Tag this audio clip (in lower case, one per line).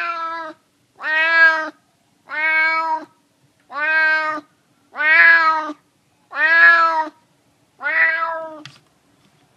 cat meowing